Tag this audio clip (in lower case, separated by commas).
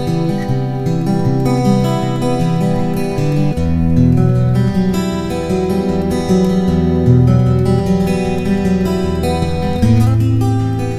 music, musical instrument, plucked string instrument, guitar, strum